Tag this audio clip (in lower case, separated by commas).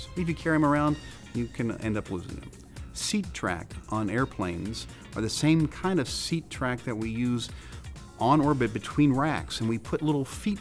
speech, music